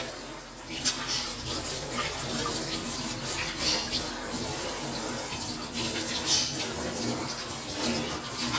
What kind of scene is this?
kitchen